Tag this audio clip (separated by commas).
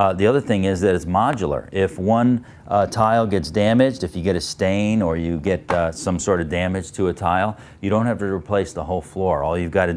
Speech